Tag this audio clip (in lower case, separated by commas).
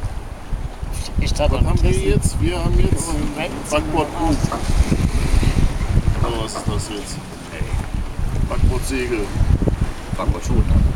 sailing ship, speech, vehicle, water vehicle